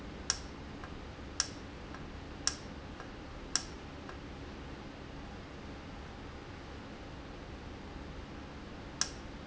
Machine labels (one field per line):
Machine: valve